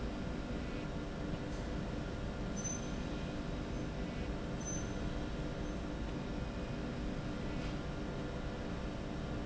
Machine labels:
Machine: slide rail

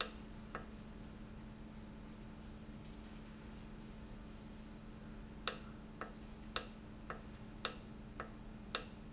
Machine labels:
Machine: valve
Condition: normal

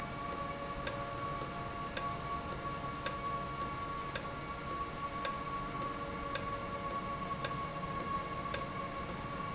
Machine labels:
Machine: valve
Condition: normal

